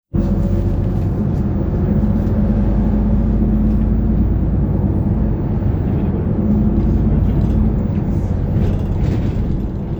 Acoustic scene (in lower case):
bus